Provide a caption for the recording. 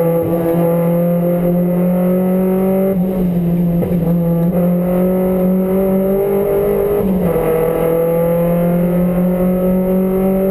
A car engine is running and gear shifts